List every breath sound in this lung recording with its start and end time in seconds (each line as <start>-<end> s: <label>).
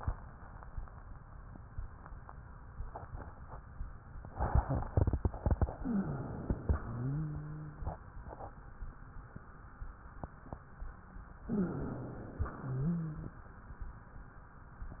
5.74-6.64 s: wheeze
5.76-6.74 s: inhalation
6.74-8.04 s: wheeze
11.46-12.36 s: inhalation
11.46-12.36 s: wheeze
12.38-13.40 s: wheeze